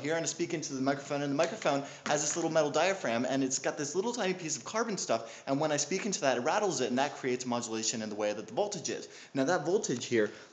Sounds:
speech

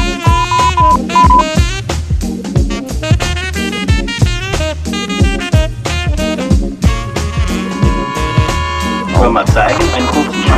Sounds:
speech, music

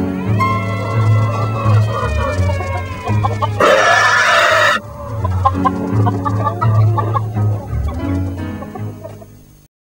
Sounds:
chicken, music, cluck

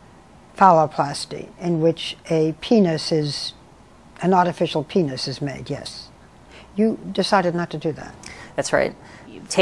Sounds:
man speaking, speech

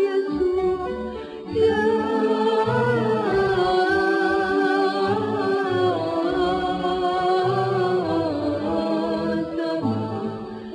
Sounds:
a capella

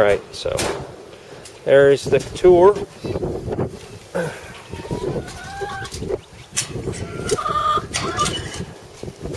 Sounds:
speech, bird, chicken

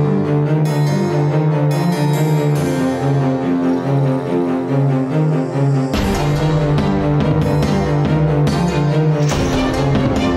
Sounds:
music

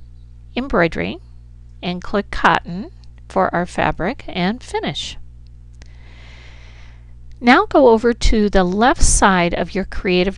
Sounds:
speech

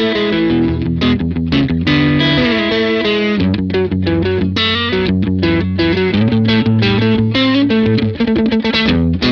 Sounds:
strum, music, musical instrument, electric guitar, plucked string instrument, guitar

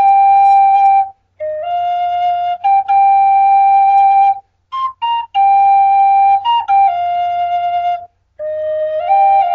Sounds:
flute, music

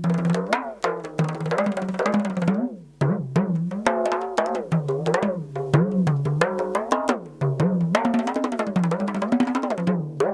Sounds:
music, musical instrument, drum

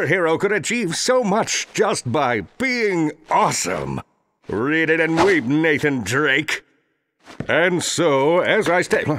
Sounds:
speech

